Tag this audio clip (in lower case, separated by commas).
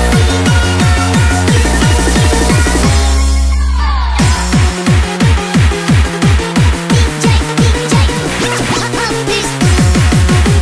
techno, music, electronic music